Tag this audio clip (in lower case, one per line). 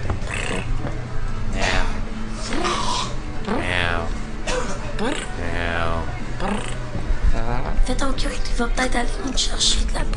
speech